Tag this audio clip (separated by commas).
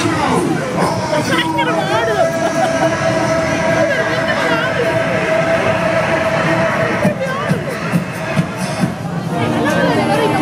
Music, Speech